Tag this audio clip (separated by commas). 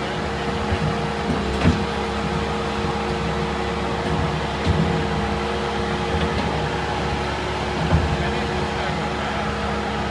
tractor digging